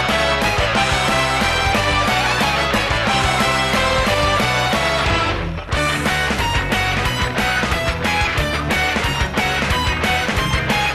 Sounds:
Music

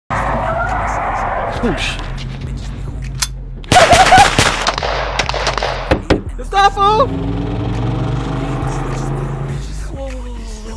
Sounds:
Music, outside, urban or man-made, Speech

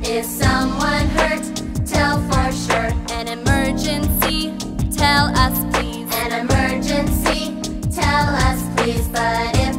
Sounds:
Music

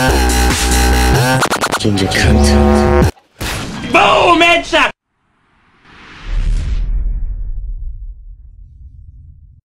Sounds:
Speech, Dubstep, Music, Electronic music

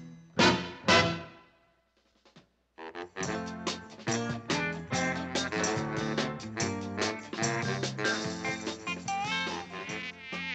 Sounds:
Music

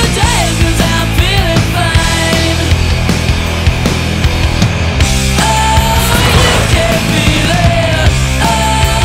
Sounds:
Music

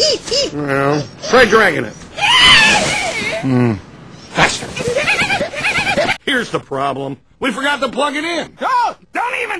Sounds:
Speech

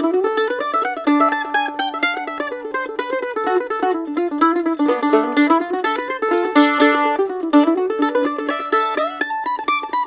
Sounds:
playing mandolin

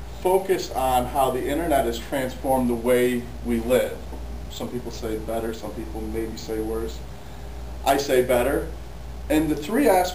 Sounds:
Speech, Narration, Male speech

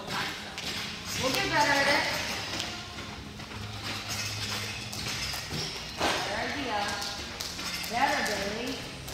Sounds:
rope skipping

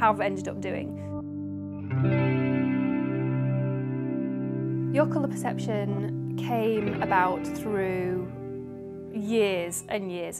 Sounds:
Music, Speech

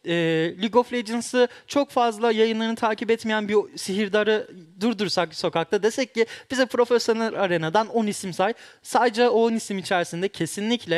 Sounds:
Speech

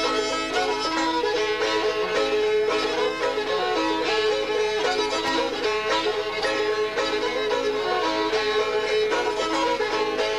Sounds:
Musical instrument, Traditional music, Music

